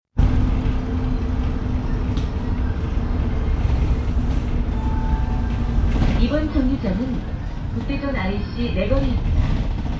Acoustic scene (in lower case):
bus